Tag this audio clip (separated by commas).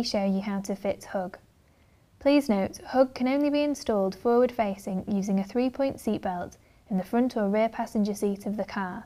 Speech